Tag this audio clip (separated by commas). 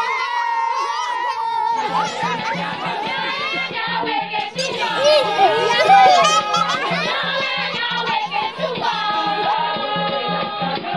Speech, Music